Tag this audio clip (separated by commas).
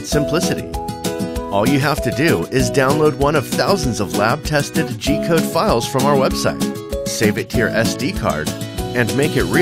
Speech, Music